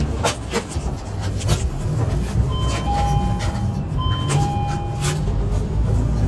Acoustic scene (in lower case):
bus